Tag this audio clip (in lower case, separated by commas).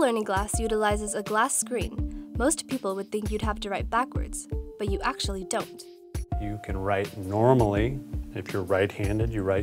music, speech